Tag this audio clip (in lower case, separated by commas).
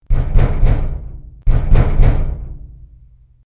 door, knock, domestic sounds